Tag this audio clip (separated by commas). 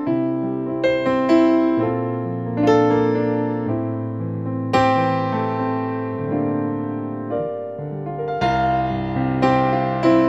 Tender music, Music